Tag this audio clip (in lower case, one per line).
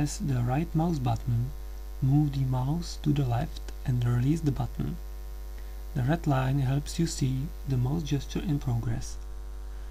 speech